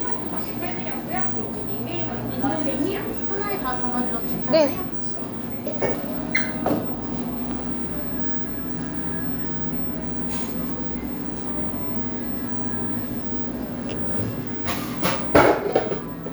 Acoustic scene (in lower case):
cafe